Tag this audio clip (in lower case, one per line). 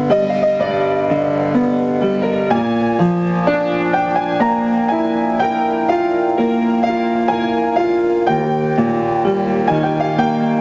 music